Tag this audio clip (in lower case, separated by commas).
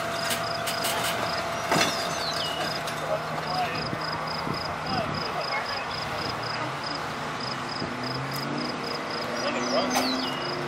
speech